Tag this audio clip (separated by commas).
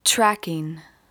woman speaking, Speech, Human voice